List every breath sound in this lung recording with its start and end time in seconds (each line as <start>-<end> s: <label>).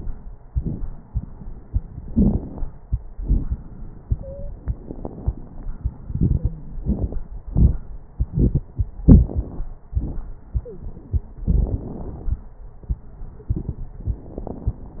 2.08-2.66 s: inhalation
2.08-2.66 s: crackles
3.19-3.55 s: exhalation
3.19-3.55 s: crackles
4.19-4.51 s: wheeze
10.57-10.89 s: wheeze